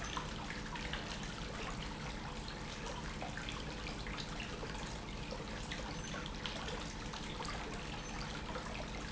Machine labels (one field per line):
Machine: pump